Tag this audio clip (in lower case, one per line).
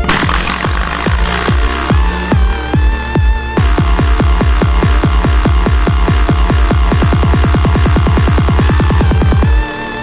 electronic music
music
dubstep